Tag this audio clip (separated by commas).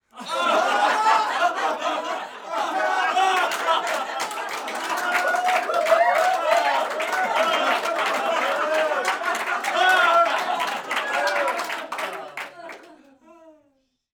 Human group actions, Applause, Cheering